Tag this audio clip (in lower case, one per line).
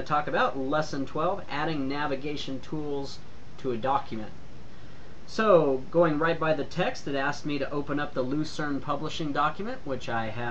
speech